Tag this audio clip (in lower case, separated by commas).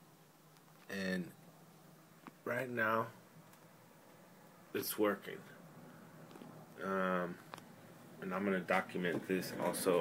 speech